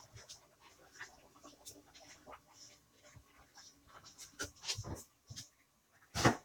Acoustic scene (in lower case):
kitchen